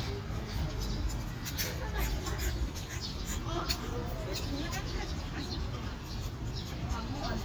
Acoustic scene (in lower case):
park